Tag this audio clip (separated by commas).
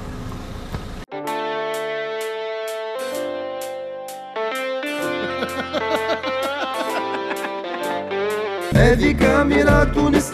Music